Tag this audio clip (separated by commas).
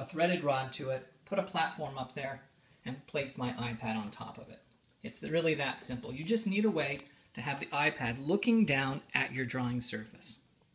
Speech